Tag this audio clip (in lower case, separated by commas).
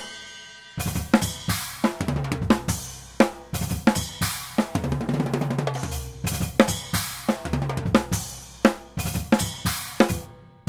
bass drum, cymbal, drum, snare drum, rimshot, drum kit, percussion, hi-hat, drum roll